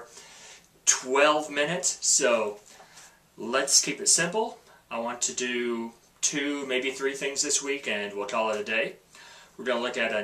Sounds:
Speech

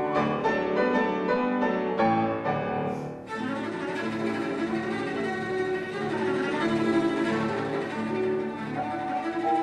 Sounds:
Piano, Music, Musical instrument, Bowed string instrument, Classical music, Cello, playing cello

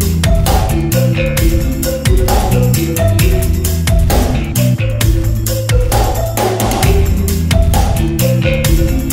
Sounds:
Music

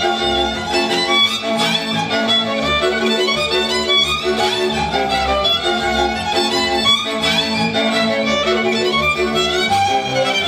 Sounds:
Music, Musical instrument, fiddle, Bowed string instrument

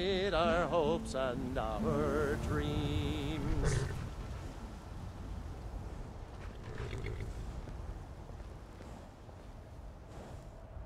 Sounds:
Male singing, Music

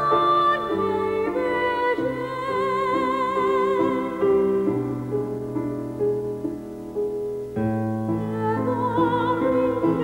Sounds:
Music, Opera

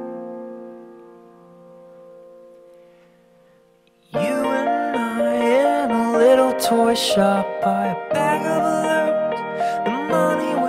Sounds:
Music

